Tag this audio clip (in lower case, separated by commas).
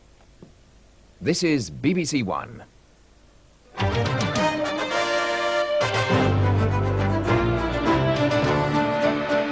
speech, music